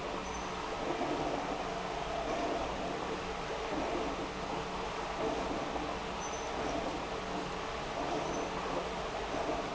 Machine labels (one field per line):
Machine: pump